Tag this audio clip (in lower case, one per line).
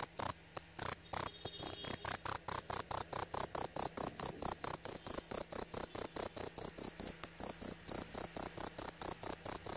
cricket chirping